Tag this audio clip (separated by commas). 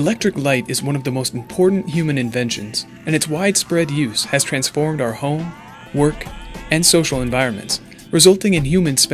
Speech, Music